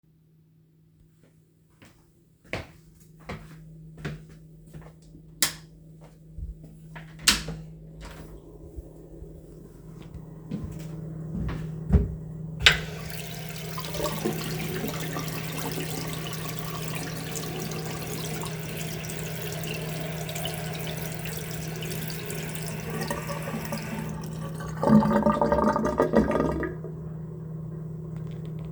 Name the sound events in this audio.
footsteps, light switch, door, running water